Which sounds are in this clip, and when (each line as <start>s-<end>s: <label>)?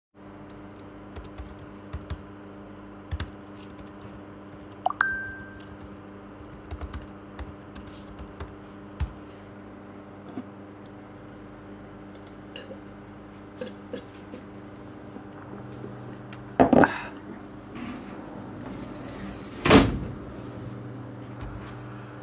0.4s-12.8s: keyboard typing
4.8s-5.8s: phone ringing
18.4s-20.2s: window